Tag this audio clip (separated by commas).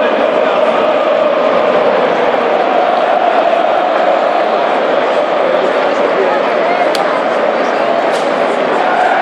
Speech